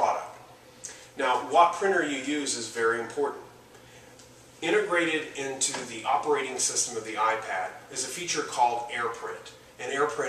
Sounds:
Speech

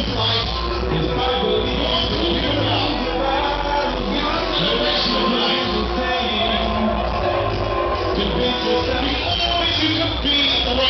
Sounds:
Music, Reverberation, Speech

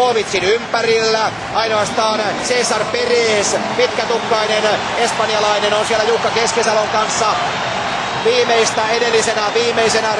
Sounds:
outside, urban or man-made, Speech

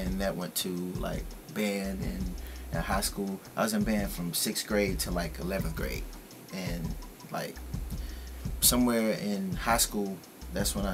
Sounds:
Speech

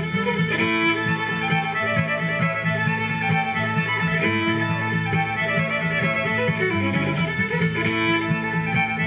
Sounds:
fiddle, Music, Musical instrument

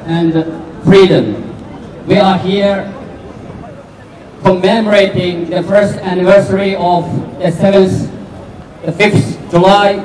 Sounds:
Speech

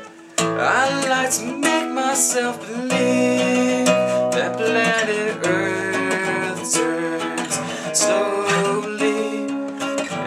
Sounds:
Music

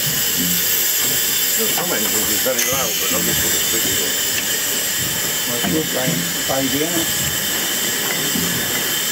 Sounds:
inside a small room, Steam, Speech

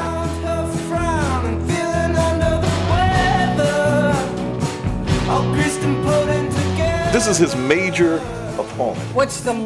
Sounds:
Country, Music, Speech

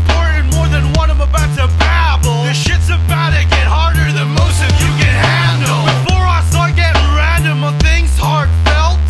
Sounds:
Music

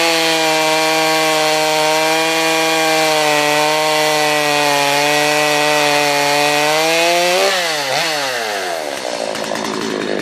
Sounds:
Chainsaw, chainsawing trees

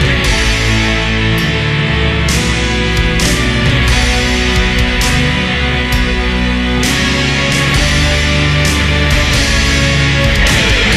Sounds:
Music

